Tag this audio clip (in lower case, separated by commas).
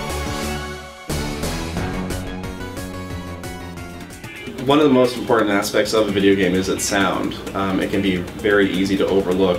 speech, music